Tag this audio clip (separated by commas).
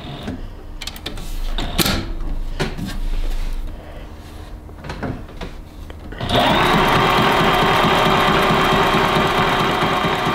using sewing machines